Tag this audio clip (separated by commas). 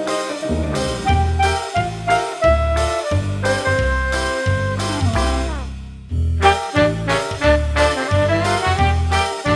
Music